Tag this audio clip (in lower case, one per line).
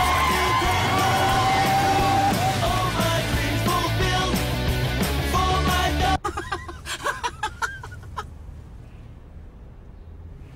male singing
music